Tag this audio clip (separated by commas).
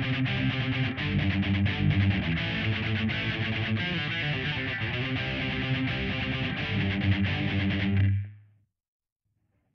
Strum, Music, Plucked string instrument, Musical instrument, Guitar, Acoustic guitar